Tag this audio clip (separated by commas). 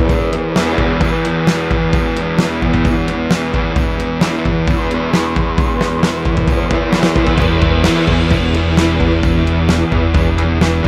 Music